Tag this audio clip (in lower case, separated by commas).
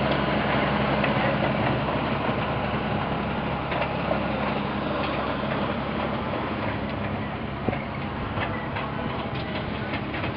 engine, vehicle